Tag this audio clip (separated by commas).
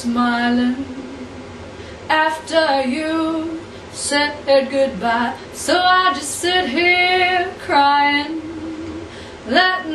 Female singing